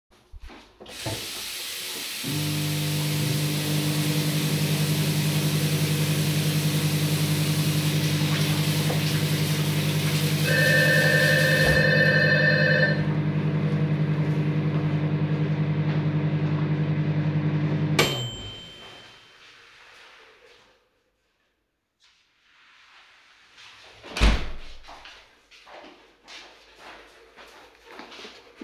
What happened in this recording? I turn the water and the microwave on, wash my hands in that water, the bell rings, I turn off the water, I walk up to the front door, I open it and close it, my dog also breaths at the end